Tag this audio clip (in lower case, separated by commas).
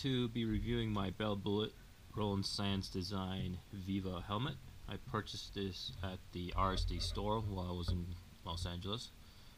speech